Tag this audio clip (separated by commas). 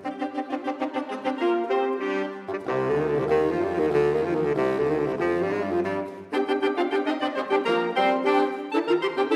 Musical instrument, Saxophone, woodwind instrument, Music